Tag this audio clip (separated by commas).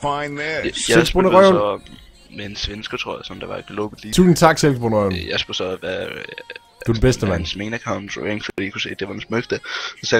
Music, Speech